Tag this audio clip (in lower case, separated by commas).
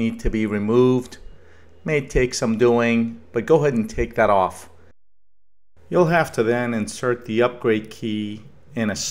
speech